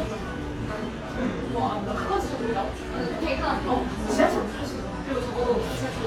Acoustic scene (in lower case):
cafe